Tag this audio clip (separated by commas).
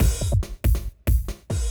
Drum kit, Musical instrument, Music, Percussion